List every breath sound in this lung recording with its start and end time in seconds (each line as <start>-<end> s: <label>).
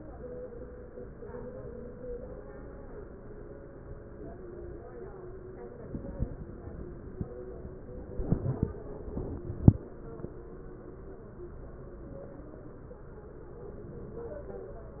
13.67-14.40 s: inhalation